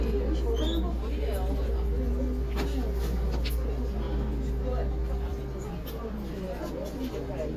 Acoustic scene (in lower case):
crowded indoor space